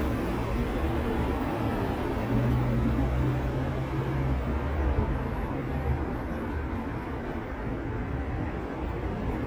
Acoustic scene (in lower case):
street